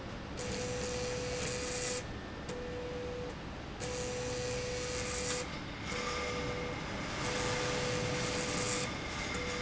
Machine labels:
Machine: slide rail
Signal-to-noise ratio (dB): -6 dB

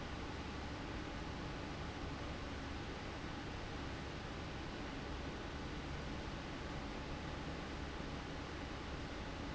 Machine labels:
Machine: fan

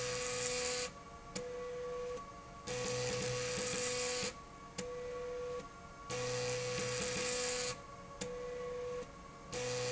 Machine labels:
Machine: slide rail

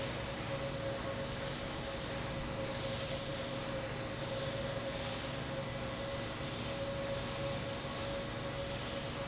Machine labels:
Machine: fan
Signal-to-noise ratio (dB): -6 dB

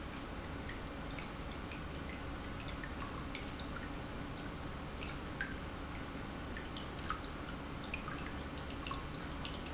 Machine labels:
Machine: pump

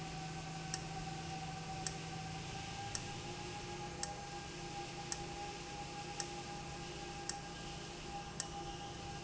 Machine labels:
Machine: valve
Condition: abnormal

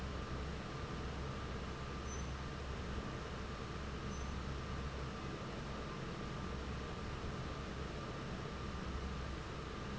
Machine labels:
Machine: fan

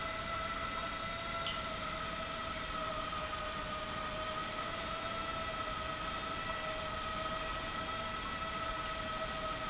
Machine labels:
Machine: pump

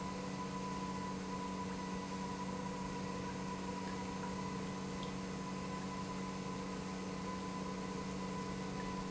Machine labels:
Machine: pump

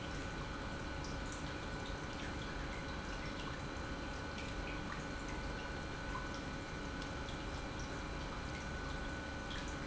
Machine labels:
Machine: pump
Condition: normal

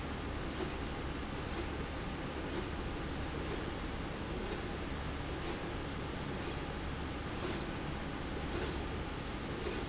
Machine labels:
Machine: slide rail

